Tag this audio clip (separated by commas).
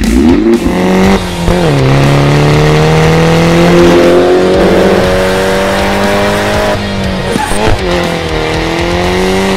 Music